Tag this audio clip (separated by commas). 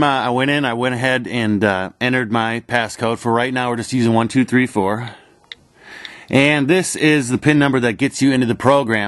Tap, Speech